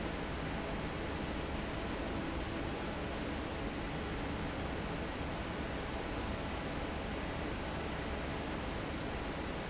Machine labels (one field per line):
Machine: fan